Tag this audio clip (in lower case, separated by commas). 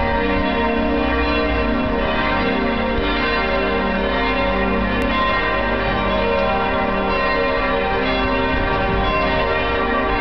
church bell ringing